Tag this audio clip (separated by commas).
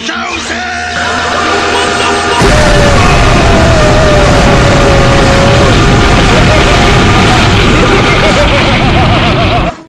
Boom